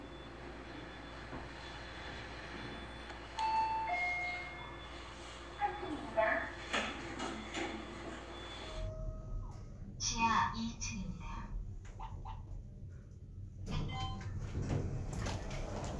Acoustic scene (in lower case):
elevator